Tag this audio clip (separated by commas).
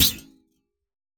thud